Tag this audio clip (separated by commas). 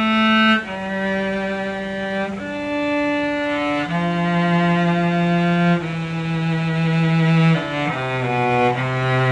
Musical instrument, Music, Cello